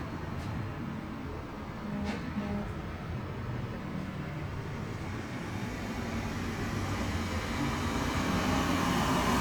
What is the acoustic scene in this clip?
street